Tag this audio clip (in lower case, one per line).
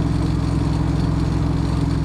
car
motor vehicle (road)
truck
vehicle
engine